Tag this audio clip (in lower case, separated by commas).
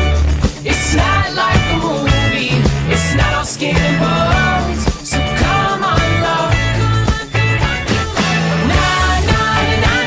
music